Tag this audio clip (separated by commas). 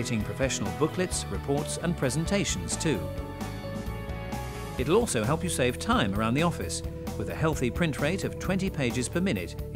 Speech, Music